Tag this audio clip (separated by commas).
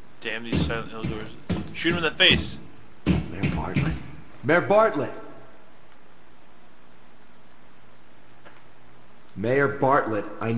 Speech